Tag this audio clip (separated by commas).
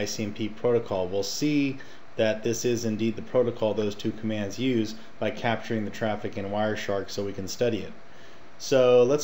Speech